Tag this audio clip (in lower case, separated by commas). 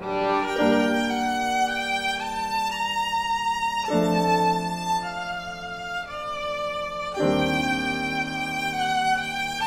musical instrument, fiddle, music